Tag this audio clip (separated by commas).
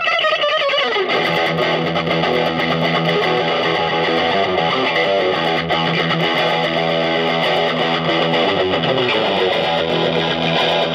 playing electric guitar